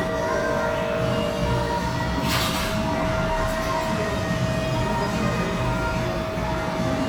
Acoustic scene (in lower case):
cafe